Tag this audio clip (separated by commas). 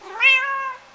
Cat, Animal, pets